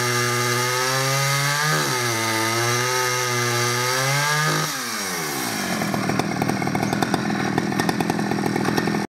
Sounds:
chainsawing trees, chainsaw

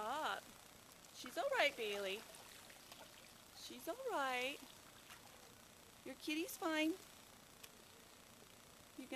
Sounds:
speech

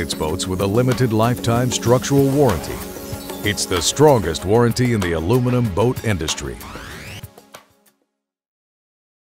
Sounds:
music, speech

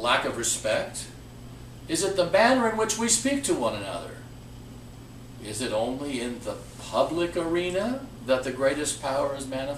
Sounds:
speech

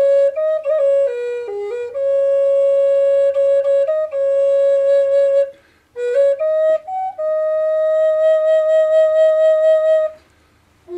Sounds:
playing flute, music, flute, musical instrument

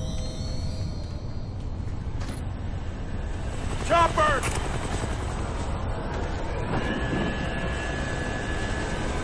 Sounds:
speech

